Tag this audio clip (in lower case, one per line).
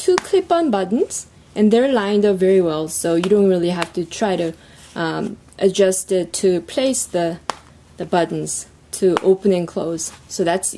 speech